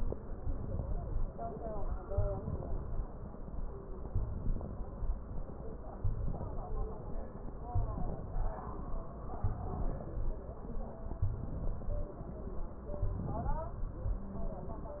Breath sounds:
1.95-2.85 s: inhalation
2.04-2.43 s: wheeze
4.16-4.91 s: inhalation
6.00-6.75 s: inhalation
7.74-8.49 s: inhalation
9.51-10.26 s: inhalation
11.32-12.08 s: inhalation
13.07-13.83 s: inhalation

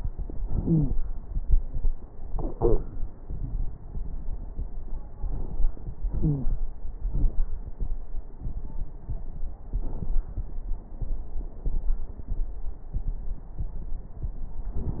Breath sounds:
0.56-0.94 s: wheeze
6.15-6.53 s: wheeze

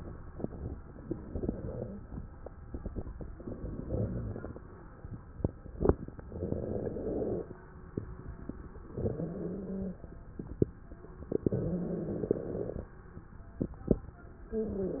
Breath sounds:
1.04-2.04 s: crackles
1.05-2.18 s: inhalation
3.35-4.64 s: inhalation
3.42-4.52 s: crackles
6.27-7.56 s: inhalation
8.95-10.04 s: inhalation
8.99-9.98 s: wheeze
11.39-12.90 s: inhalation
11.49-12.79 s: wheeze
14.48-15.00 s: wheeze
14.55-15.00 s: inhalation

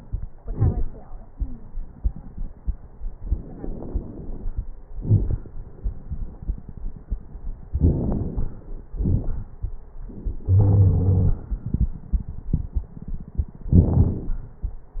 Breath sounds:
3.17-4.64 s: inhalation
3.17-4.64 s: crackles
4.99-5.48 s: exhalation
4.99-5.48 s: crackles
7.72-8.59 s: inhalation
7.72-8.59 s: crackles
8.98-9.50 s: exhalation
8.98-9.50 s: crackles
10.46-11.40 s: wheeze

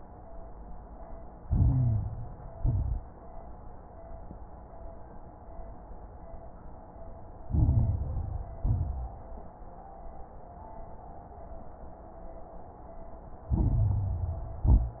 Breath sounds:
1.41-2.54 s: inhalation
1.41-2.54 s: crackles
2.58-3.21 s: exhalation
2.58-3.21 s: crackles
7.47-8.61 s: inhalation
7.47-8.61 s: crackles
8.63-9.25 s: exhalation
8.63-9.25 s: crackles
13.53-14.67 s: inhalation
13.53-14.67 s: crackles
14.67-15.00 s: exhalation
14.67-15.00 s: crackles

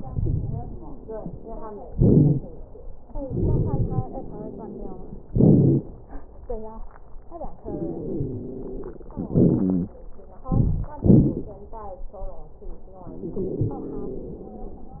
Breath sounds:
0.00-0.78 s: inhalation
0.00-0.78 s: crackles
1.90-2.41 s: exhalation
1.90-2.41 s: wheeze
3.25-4.04 s: inhalation
3.25-4.04 s: crackles
5.34-5.83 s: exhalation
5.34-5.83 s: crackles
7.66-8.99 s: inhalation
7.66-8.99 s: wheeze
9.18-9.96 s: exhalation
9.34-9.97 s: wheeze
10.48-10.94 s: inhalation
10.48-10.94 s: crackles
11.03-11.54 s: exhalation
13.14-15.00 s: inhalation
13.14-15.00 s: wheeze

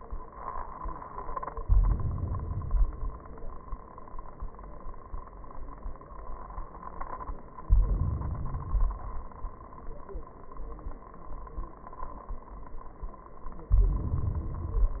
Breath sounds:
1.52-2.45 s: inhalation
2.43-3.36 s: exhalation
7.66-8.58 s: inhalation
8.57-9.49 s: exhalation
13.71-14.59 s: inhalation
14.62-15.00 s: exhalation

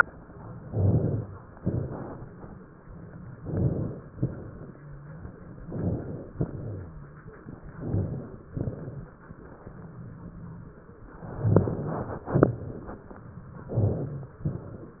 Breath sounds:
0.58-1.53 s: inhalation
0.58-1.53 s: crackles
1.57-2.65 s: exhalation
1.57-2.65 s: crackles
3.36-4.14 s: inhalation
3.36-4.14 s: crackles
4.15-5.26 s: exhalation
4.15-5.26 s: crackles
4.59-5.26 s: wheeze
5.66-6.32 s: inhalation
5.66-6.32 s: crackles
6.37-7.26 s: exhalation
6.37-7.26 s: crackles
7.76-8.54 s: inhalation
7.78-8.52 s: crackles
8.53-9.38 s: exhalation
8.53-9.38 s: crackles
11.13-12.26 s: inhalation
11.13-12.26 s: crackles
12.27-13.38 s: exhalation
12.27-13.38 s: crackles
13.68-14.44 s: crackles
13.70-14.46 s: inhalation
14.43-15.00 s: exhalation
14.49-15.00 s: crackles

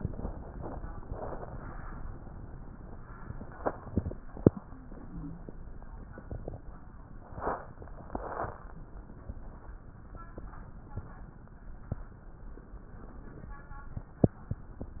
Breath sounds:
4.63-5.49 s: wheeze

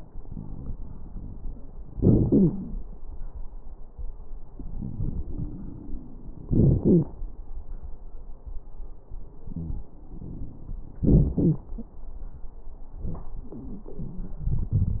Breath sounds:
1.99-2.23 s: inhalation
1.99-2.23 s: crackles
2.22-2.52 s: wheeze
2.28-2.62 s: exhalation
6.49-6.83 s: inhalation
6.49-6.83 s: crackles
6.80-7.12 s: wheeze
6.82-7.16 s: exhalation
11.06-11.40 s: inhalation
11.06-11.40 s: crackles
11.39-11.67 s: exhalation
11.39-11.67 s: wheeze

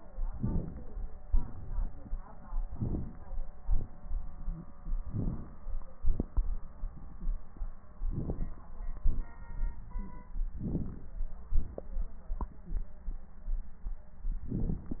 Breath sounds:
0.30-0.88 s: inhalation
1.25-1.75 s: exhalation
2.71-3.21 s: inhalation
3.61-3.89 s: exhalation
5.07-5.66 s: inhalation
6.03-6.47 s: exhalation
8.12-8.56 s: inhalation
8.12-8.56 s: crackles
8.99-9.34 s: exhalation
10.62-11.10 s: inhalation
10.62-11.10 s: crackles
11.52-11.90 s: exhalation
14.50-14.88 s: inhalation
14.50-14.88 s: crackles

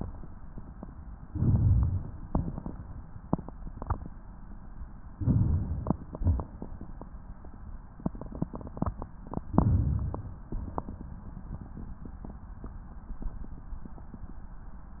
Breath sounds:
1.25-2.18 s: inhalation
2.18-3.31 s: exhalation
5.15-6.12 s: inhalation
6.13-7.33 s: exhalation
9.36-10.48 s: inhalation
10.49-11.69 s: exhalation

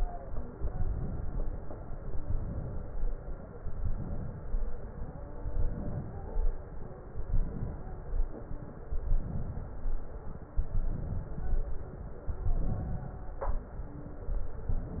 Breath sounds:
0.46-1.68 s: inhalation
1.83-3.05 s: inhalation
3.55-4.77 s: inhalation
5.35-6.57 s: inhalation
7.10-8.31 s: inhalation
8.94-10.03 s: inhalation
10.56-11.87 s: inhalation
12.19-13.50 s: inhalation

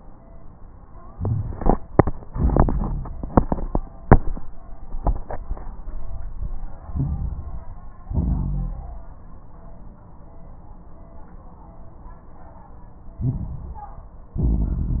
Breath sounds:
6.84-8.04 s: inhalation
6.84-8.04 s: crackles
8.06-9.25 s: exhalation
8.06-9.25 s: crackles
13.15-14.35 s: inhalation
13.15-14.35 s: crackles
14.35-15.00 s: exhalation
14.35-15.00 s: crackles

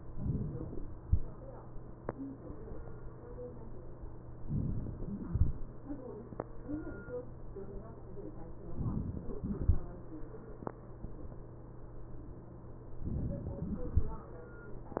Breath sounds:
4.47-5.37 s: inhalation
8.88-9.78 s: inhalation
13.11-14.01 s: inhalation

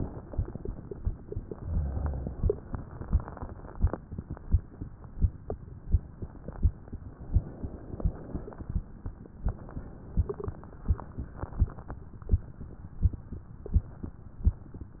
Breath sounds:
1.49-2.61 s: inhalation
2.71-3.96 s: exhalation
7.36-8.60 s: inhalation
9.49-10.73 s: inhalation
10.88-12.00 s: exhalation

